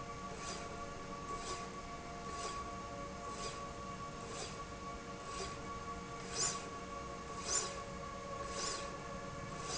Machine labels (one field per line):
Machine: slide rail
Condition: normal